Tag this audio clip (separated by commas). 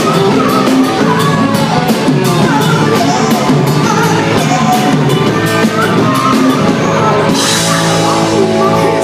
Music